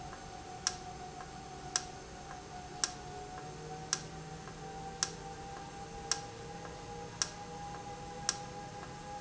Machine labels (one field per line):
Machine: valve